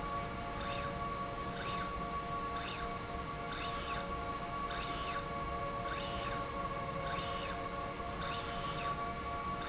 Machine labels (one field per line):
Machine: slide rail